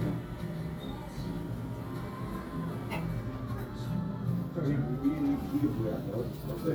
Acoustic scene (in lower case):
cafe